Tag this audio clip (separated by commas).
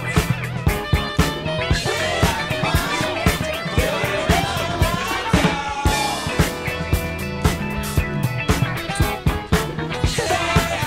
Music, Swing music, Funk